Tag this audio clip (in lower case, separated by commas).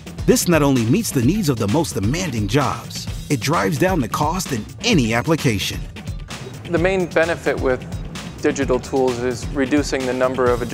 music, speech